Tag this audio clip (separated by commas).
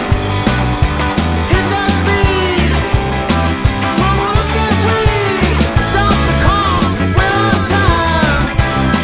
Independent music, Music